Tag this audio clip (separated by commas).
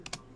Typing, Domestic sounds